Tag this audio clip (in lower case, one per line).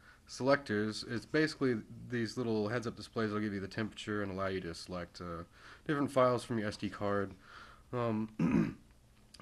speech